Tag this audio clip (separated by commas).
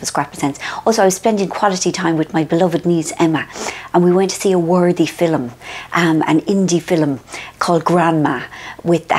Speech